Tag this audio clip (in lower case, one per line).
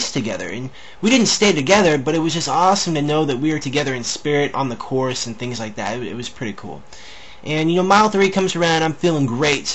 speech
inside a small room